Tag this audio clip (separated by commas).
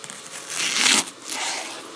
home sounds